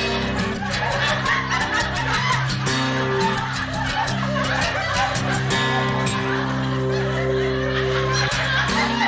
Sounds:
music

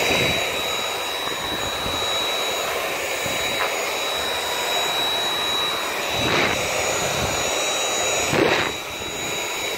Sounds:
vacuum cleaner cleaning floors

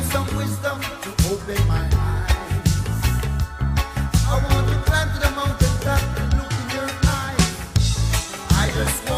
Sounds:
music
funk

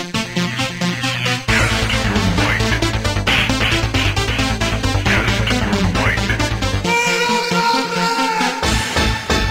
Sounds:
music

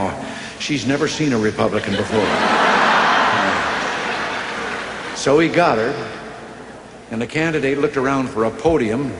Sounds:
narration
speech
man speaking

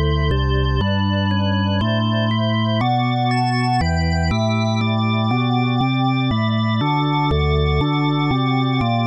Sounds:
soundtrack music
music

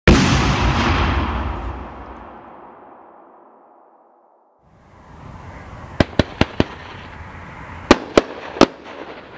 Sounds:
fireworks banging
firecracker
fireworks

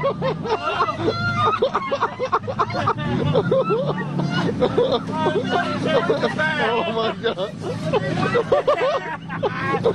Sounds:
speech
vehicle
boat

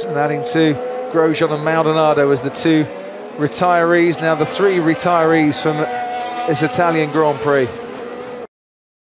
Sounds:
vehicle
speech
medium engine (mid frequency)
car
vroom

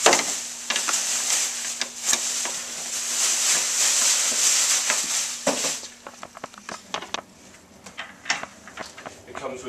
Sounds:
speech
inside a large room or hall

